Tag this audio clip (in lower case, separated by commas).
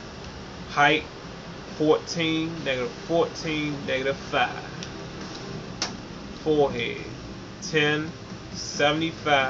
speech